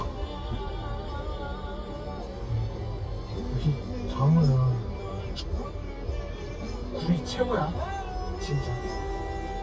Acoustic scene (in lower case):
car